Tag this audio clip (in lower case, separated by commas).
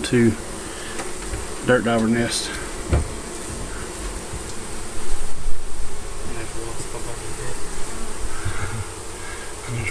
bee or wasp, insect, housefly